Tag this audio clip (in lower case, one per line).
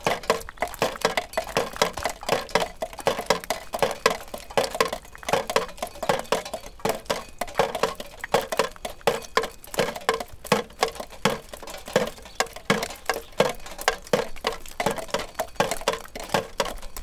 drip
liquid